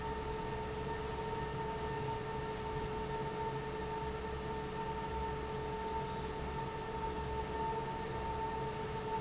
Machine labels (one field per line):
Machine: fan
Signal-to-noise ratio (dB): -6 dB